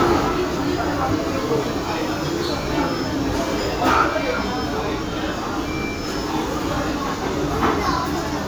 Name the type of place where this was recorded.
restaurant